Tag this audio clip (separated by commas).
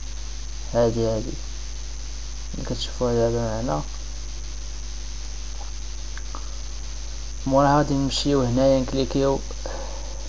Speech